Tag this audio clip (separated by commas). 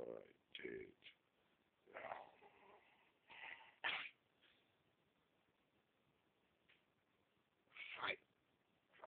Speech